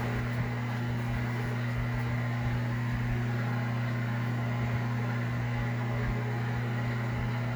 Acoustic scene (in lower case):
kitchen